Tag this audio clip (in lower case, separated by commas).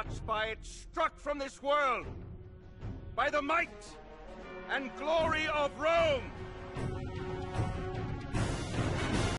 man speaking, speech, music